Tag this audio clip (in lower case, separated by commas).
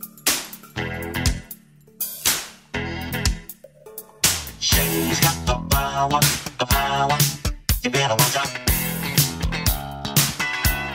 music